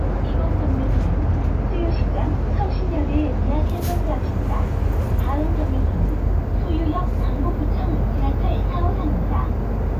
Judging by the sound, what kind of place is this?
bus